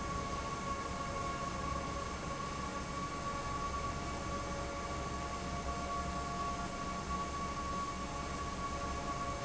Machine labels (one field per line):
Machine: fan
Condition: abnormal